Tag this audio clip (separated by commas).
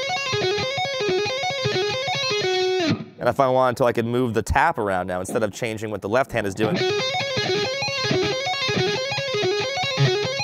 tapping guitar